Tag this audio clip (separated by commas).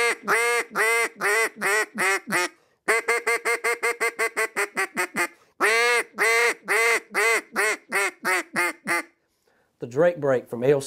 Speech, Quack